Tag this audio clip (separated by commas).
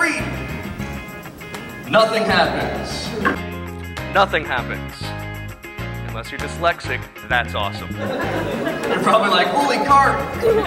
Music, Speech